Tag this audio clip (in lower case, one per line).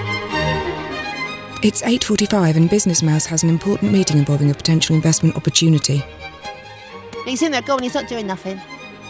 speech
music